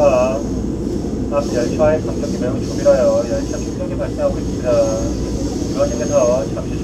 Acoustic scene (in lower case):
subway train